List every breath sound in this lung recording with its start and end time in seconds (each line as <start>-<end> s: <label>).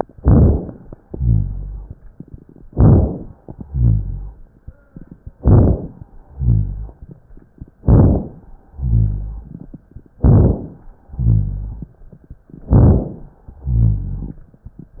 0.17-0.89 s: inhalation
0.17-0.89 s: crackles
1.06-1.94 s: exhalation
1.06-1.94 s: rhonchi
2.66-3.38 s: inhalation
2.66-3.38 s: crackles
3.62-4.50 s: exhalation
3.62-4.50 s: rhonchi
5.35-6.07 s: inhalation
5.35-6.07 s: crackles
6.26-7.14 s: exhalation
6.26-7.14 s: rhonchi
7.84-8.56 s: inhalation
7.84-8.56 s: crackles
8.71-9.58 s: exhalation
8.71-9.58 s: rhonchi
10.21-10.93 s: inhalation
10.21-10.93 s: crackles
11.12-11.99 s: exhalation
11.12-11.99 s: rhonchi
12.69-13.42 s: inhalation
12.69-13.42 s: crackles
13.57-14.44 s: exhalation
13.57-14.44 s: rhonchi